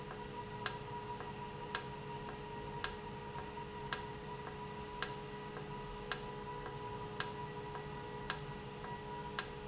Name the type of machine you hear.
valve